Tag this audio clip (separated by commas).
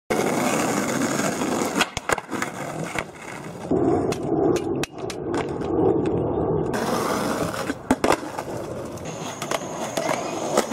skateboarding